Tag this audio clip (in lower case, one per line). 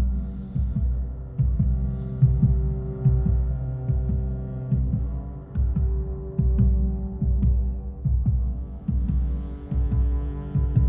music